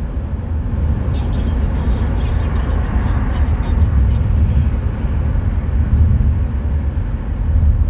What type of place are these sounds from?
car